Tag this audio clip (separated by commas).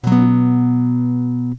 Plucked string instrument, Strum, Musical instrument, Music, Guitar, Acoustic guitar